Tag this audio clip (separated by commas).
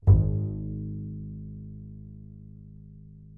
Music, Musical instrument, Bowed string instrument